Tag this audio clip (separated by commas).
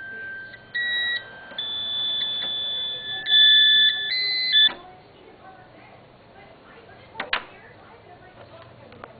Music, Speech